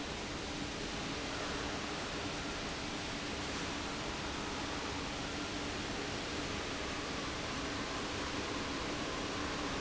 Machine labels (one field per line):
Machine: fan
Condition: abnormal